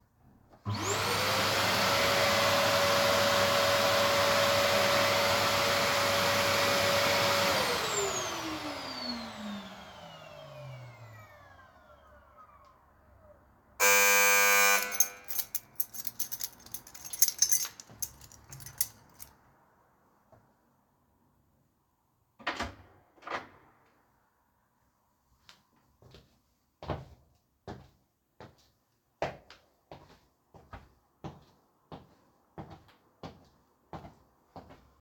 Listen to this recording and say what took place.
A vacuum cleaner was turned on, ran for some time, and was then turned off. A doorbell rang with a partial overlap of keys being drawn. Finally, a door was opened and footsteps entered the hall.